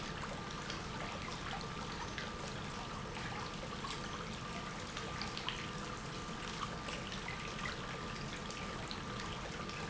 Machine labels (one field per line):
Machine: pump